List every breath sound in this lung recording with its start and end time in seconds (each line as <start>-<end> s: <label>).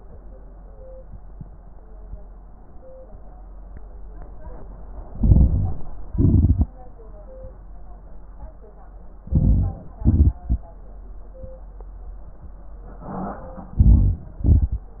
5.13-6.07 s: crackles
5.14-6.10 s: inhalation
6.10-6.73 s: exhalation
6.10-6.73 s: crackles
9.21-9.99 s: inhalation
9.21-9.99 s: crackles
10.00-10.78 s: exhalation
10.00-10.78 s: crackles
13.75-14.38 s: inhalation
13.75-14.38 s: crackles
14.41-15.00 s: exhalation
14.41-15.00 s: crackles